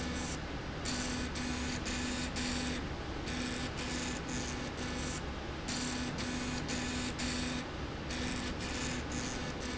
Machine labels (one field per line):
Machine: slide rail